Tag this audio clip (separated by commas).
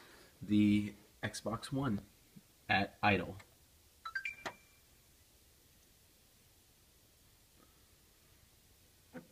Speech